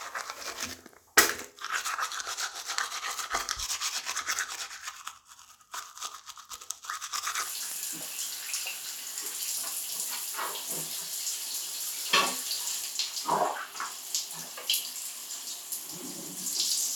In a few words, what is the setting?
restroom